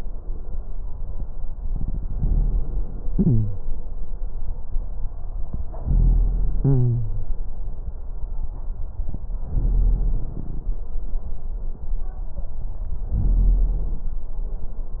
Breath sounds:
Inhalation: 1.50-3.08 s, 5.70-6.55 s, 9.47-10.77 s, 13.13-14.11 s
Exhalation: 3.11-3.54 s, 6.59-7.34 s

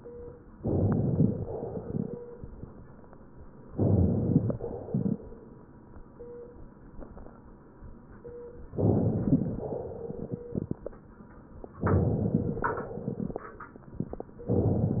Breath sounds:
Inhalation: 0.59-1.52 s, 3.76-4.54 s, 8.77-9.70 s, 11.80-12.85 s
Exhalation: 1.52-2.20 s, 4.54-5.29 s, 9.70-10.44 s, 12.85-13.45 s

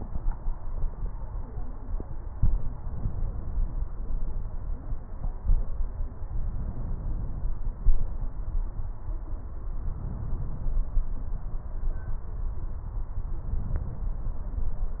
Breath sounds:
Inhalation: 2.75-3.91 s, 6.53-7.50 s, 9.81-11.06 s, 13.56-14.32 s

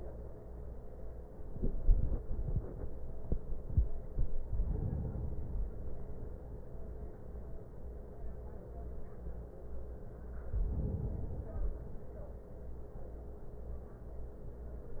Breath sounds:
Inhalation: 4.40-5.90 s, 10.47-11.97 s

